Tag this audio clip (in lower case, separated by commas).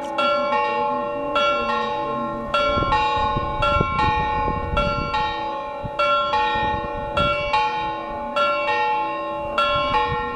church bell ringing, church bell